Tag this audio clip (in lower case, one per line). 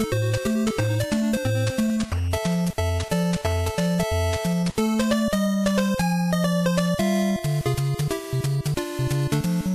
music